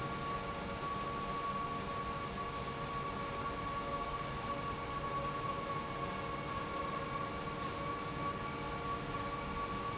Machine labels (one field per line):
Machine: pump